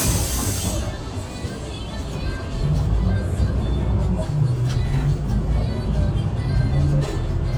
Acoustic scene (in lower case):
bus